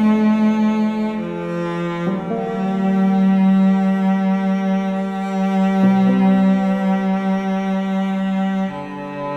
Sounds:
Music, Double bass

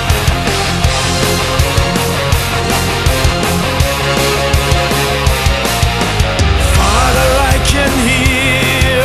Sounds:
Music

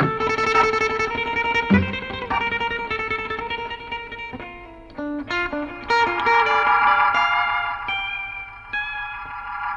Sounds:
Effects unit, Music

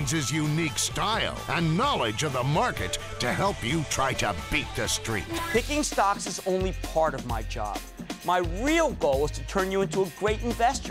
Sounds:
Speech, Music

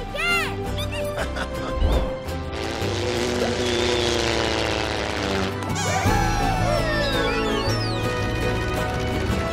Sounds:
airplane

